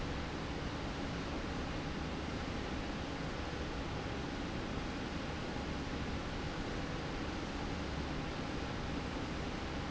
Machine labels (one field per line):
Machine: slide rail